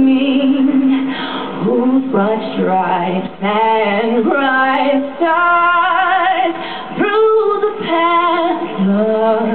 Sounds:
Female singing

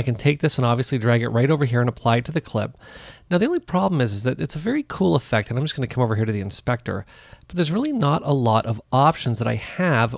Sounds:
Speech

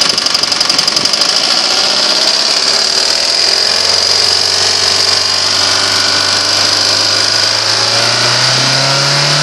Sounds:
Engine, Idling

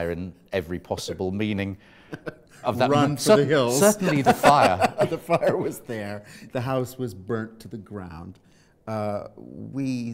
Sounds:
Speech

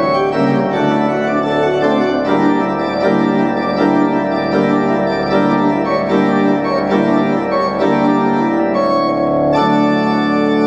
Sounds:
playing electronic organ

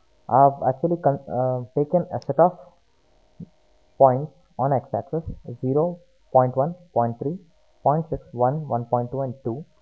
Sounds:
Speech

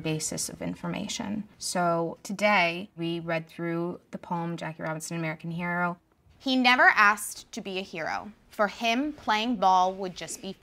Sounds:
Speech

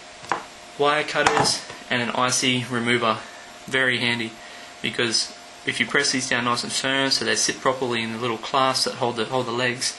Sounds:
Speech

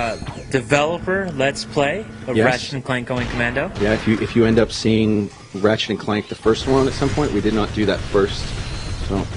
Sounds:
Speech

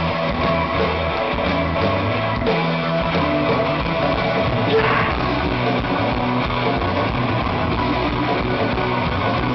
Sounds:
Music

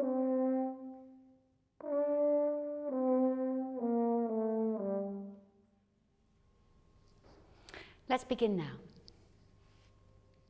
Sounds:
playing french horn

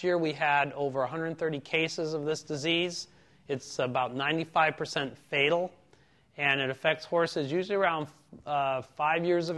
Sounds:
Speech

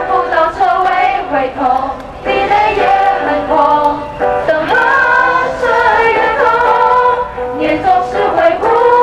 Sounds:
Female singing, Music

